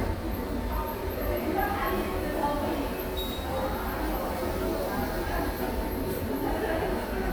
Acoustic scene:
subway station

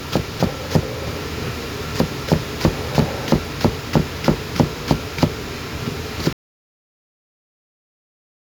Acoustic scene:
kitchen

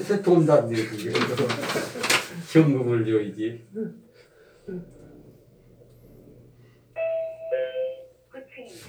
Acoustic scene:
elevator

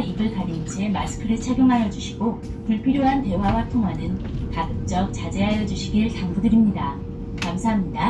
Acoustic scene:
bus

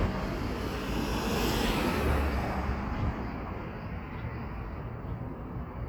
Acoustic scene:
street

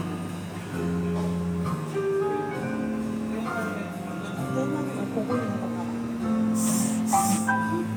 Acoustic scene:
cafe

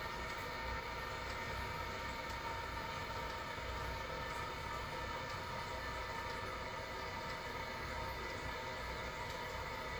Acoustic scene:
restroom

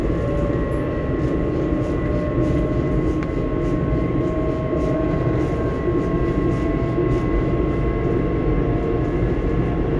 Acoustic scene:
subway train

